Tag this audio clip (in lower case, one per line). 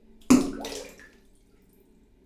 splash
liquid